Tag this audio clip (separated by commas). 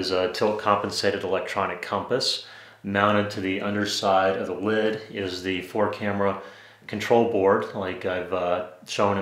Speech